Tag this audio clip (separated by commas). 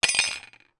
Domestic sounds, Cutlery